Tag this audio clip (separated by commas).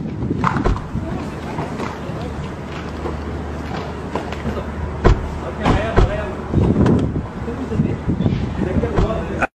Speech